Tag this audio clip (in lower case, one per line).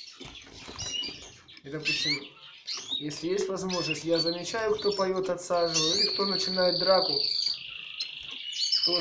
canary calling